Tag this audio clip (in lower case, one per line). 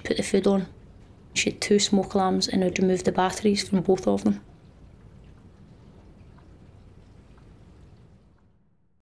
speech